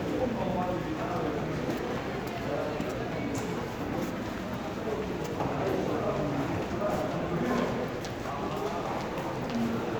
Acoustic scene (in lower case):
crowded indoor space